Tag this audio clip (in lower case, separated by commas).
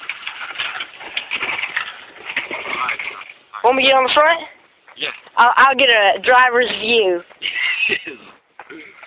speech, vehicle